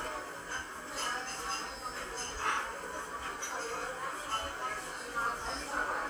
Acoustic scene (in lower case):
cafe